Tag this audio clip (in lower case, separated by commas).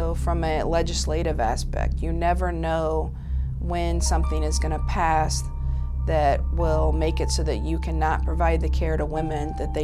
music, inside a small room, speech